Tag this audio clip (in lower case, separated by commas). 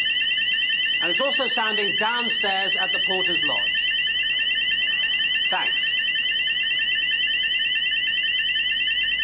speech